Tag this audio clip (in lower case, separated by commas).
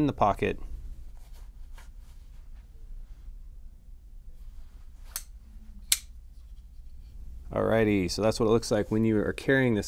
inside a small room, speech